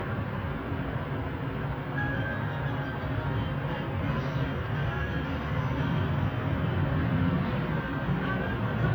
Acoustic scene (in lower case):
bus